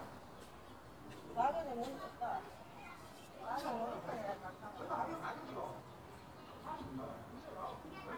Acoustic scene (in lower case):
residential area